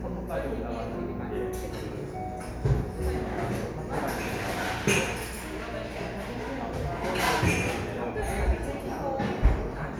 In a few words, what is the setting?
cafe